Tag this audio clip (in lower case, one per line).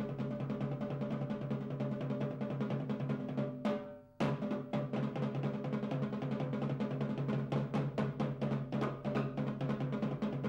playing timpani